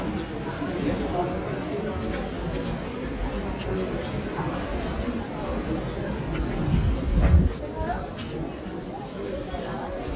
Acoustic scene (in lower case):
crowded indoor space